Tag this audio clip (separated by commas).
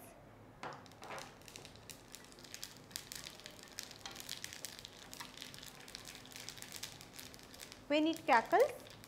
Speech, inside a small room